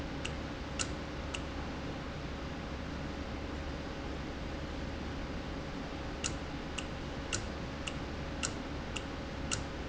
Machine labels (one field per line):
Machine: valve